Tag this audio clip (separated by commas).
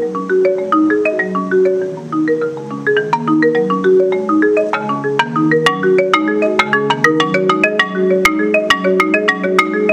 Glockenspiel, Mallet percussion, Marimba, xylophone